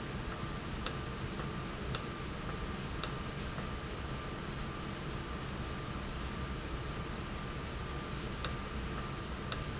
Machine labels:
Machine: valve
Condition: normal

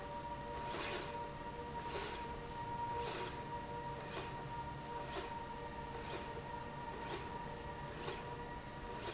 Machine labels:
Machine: slide rail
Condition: normal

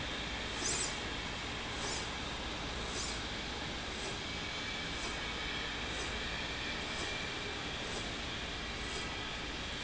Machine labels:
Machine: slide rail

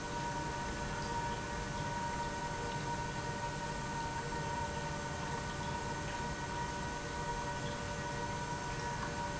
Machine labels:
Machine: pump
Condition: normal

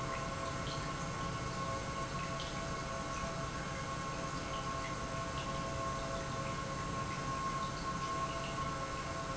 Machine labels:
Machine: pump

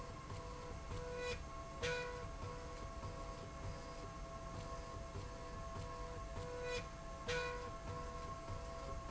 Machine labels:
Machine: slide rail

